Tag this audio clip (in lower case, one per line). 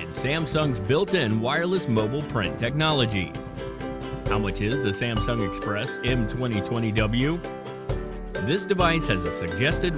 music
speech